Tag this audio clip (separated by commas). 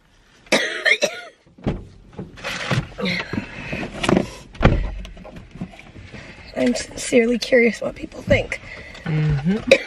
people coughing